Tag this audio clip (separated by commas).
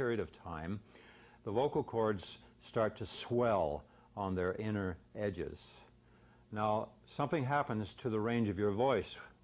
Speech